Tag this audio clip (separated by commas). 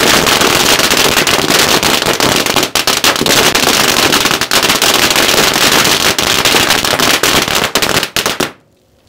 lighting firecrackers